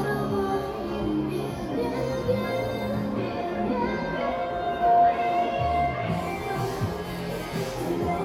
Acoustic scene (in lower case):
crowded indoor space